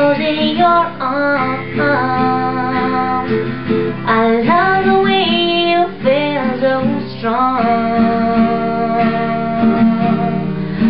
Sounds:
Musical instrument, Guitar, Music

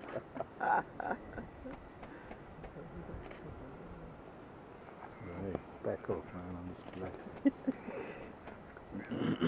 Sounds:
Speech

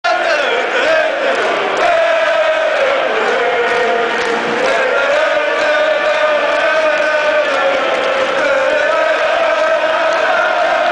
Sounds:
Singing

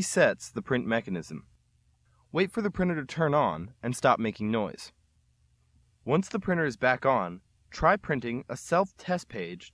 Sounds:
Speech

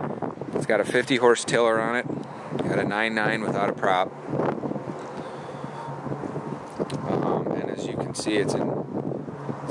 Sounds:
Speech

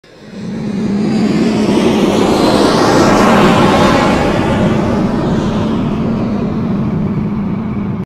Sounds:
Sound effect

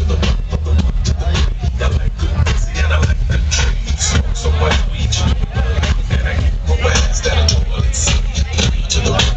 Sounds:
Speech, Music

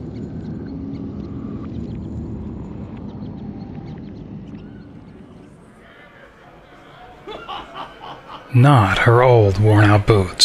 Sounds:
Speech

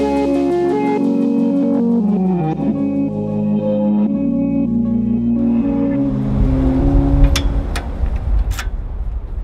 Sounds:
Music

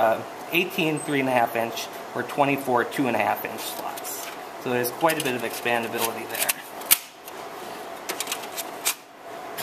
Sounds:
Speech, inside a small room

